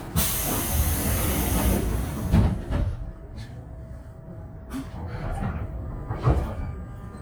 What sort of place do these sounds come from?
subway train